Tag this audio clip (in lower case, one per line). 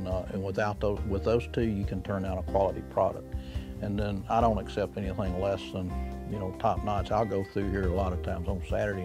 speech
music